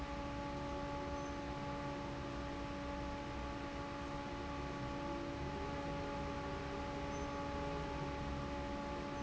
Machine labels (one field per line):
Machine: fan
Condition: normal